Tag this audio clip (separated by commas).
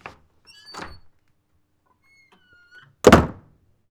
Squeak